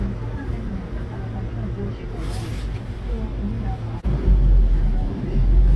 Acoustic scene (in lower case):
bus